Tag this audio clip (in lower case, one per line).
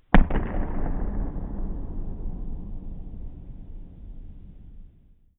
explosion